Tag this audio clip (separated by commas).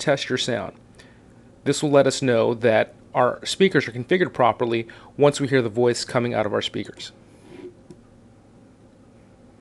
Speech